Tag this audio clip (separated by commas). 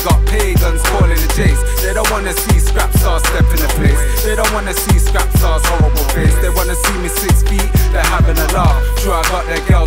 Music